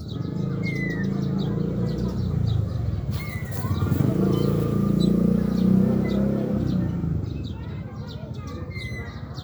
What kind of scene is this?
residential area